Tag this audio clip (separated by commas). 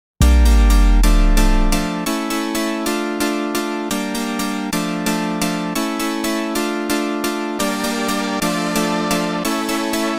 Electric piano